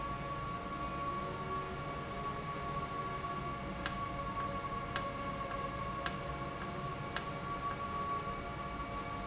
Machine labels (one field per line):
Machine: valve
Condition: normal